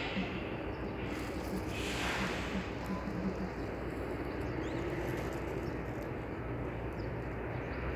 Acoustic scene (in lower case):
street